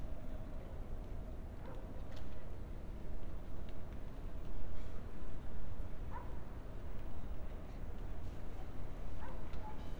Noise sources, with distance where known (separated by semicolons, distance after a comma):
dog barking or whining, far